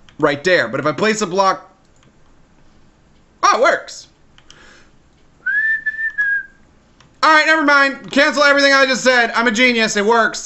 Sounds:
whistling
speech

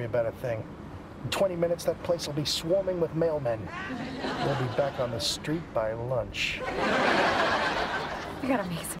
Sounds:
speech

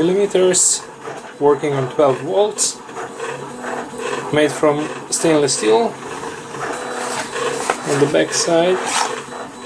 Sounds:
speech

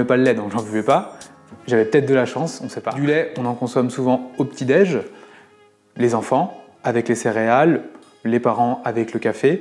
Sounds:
music
speech

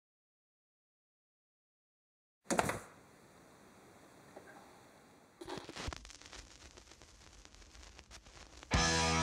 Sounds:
music
inside a small room

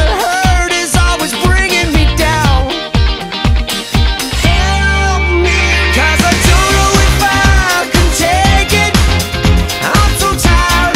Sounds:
music

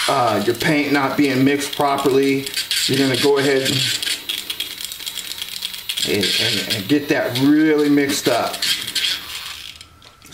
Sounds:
inside a small room
speech

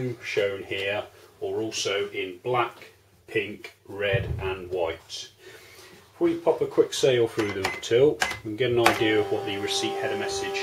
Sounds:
speech

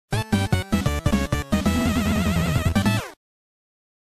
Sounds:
music

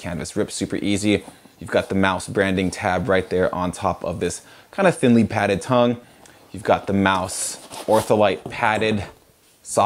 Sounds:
speech

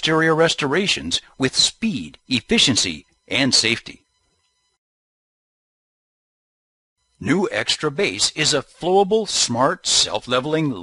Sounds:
speech

